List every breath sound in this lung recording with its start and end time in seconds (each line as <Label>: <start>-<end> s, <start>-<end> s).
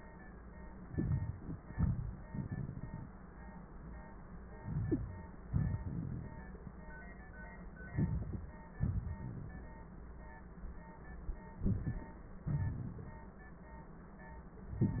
Inhalation: 0.81-1.59 s, 4.57-5.42 s, 7.88-8.51 s, 11.60-12.13 s
Exhalation: 1.66-2.17 s, 5.43-6.38 s, 8.75-9.72 s, 12.44-13.35 s
Crackles: 1.66-2.17 s, 7.88-8.51 s